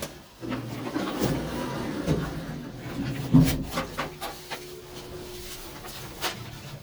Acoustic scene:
elevator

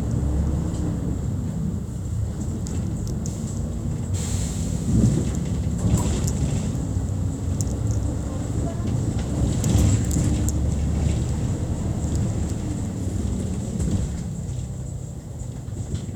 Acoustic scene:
bus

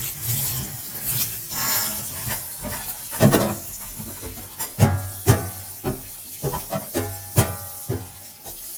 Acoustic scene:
kitchen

